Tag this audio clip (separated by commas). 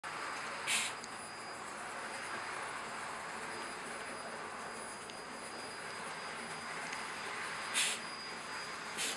Train